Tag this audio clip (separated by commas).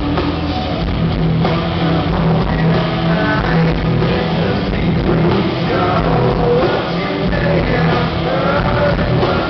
Music